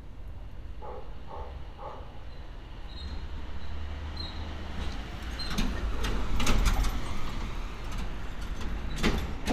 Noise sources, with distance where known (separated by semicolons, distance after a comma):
engine of unclear size, near; dog barking or whining, near